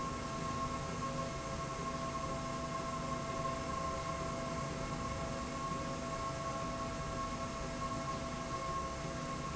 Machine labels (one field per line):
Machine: slide rail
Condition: normal